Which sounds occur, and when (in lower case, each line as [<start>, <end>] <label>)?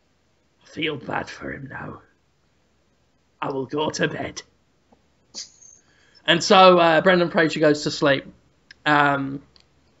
[0.00, 10.00] background noise
[0.61, 2.13] male speech
[3.38, 4.49] male speech
[3.44, 3.56] tick
[4.86, 4.99] generic impact sounds
[5.33, 5.78] generic impact sounds
[5.76, 6.26] breathing
[6.11, 6.23] squeal
[6.28, 8.32] male speech
[8.67, 8.78] tick
[8.84, 9.42] male speech
[9.52, 9.67] tick